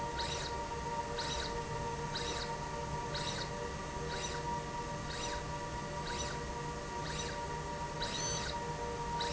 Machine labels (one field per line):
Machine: slide rail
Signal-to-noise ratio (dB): -6 dB